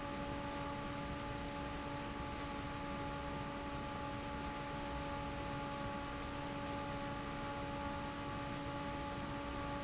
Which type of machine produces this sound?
fan